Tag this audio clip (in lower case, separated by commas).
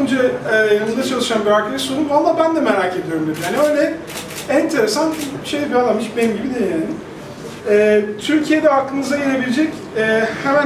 speech